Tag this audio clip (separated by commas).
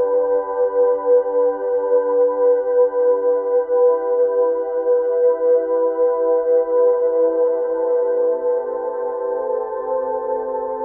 Music